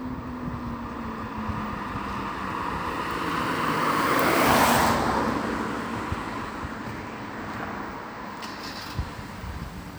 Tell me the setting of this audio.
street